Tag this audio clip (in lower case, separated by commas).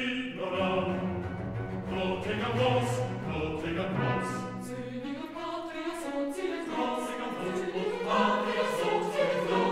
opera, music